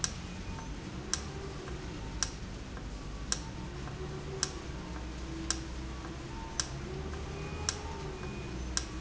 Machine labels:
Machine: valve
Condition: normal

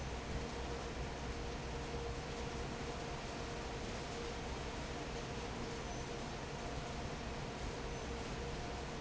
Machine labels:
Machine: fan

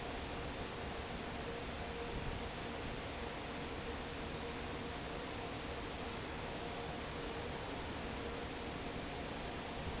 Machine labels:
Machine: fan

